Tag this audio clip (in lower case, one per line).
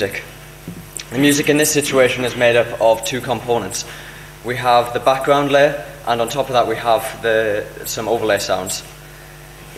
speech